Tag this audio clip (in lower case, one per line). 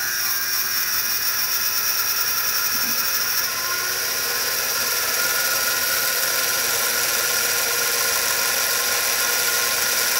engine